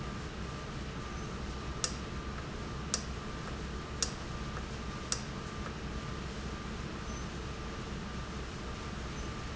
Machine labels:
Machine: valve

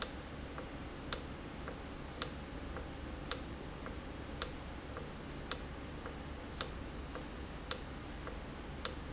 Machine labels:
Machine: valve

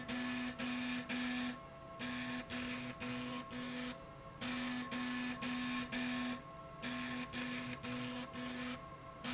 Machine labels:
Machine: slide rail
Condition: abnormal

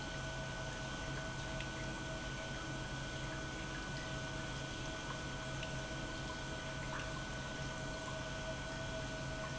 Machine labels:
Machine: pump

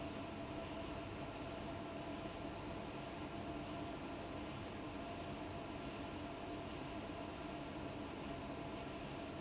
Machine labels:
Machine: fan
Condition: abnormal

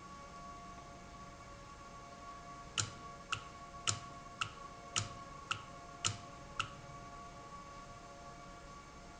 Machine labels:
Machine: valve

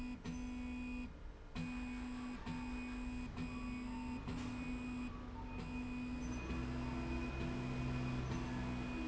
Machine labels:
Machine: slide rail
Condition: normal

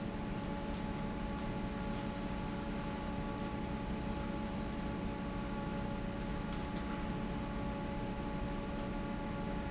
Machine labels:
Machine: fan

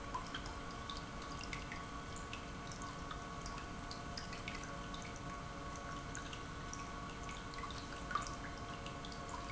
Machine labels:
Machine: pump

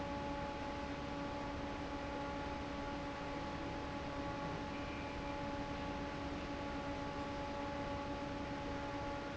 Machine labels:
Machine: fan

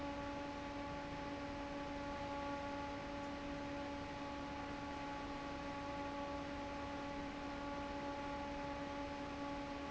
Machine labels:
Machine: fan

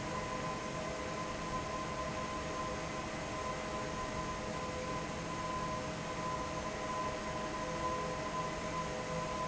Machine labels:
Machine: fan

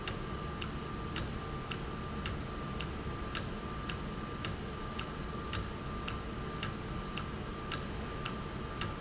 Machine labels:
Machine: valve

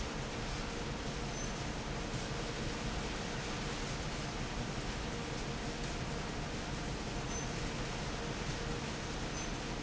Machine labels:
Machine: fan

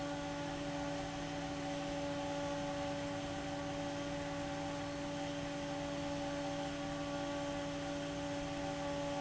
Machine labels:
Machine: fan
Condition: abnormal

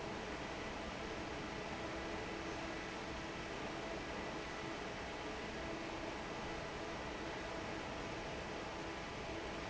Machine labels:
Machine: fan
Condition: normal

